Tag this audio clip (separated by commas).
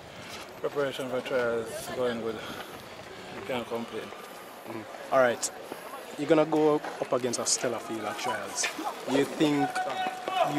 Speech